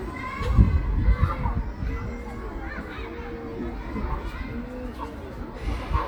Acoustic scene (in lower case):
park